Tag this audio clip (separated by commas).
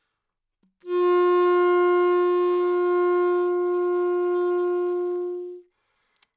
Musical instrument, Music, Wind instrument